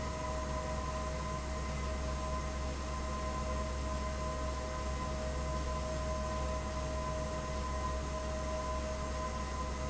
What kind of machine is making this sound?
fan